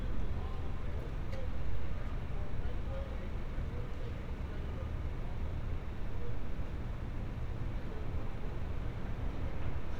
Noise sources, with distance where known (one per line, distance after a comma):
person or small group talking